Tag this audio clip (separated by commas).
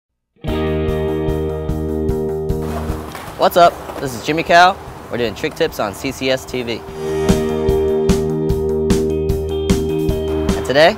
Skateboard, Electric guitar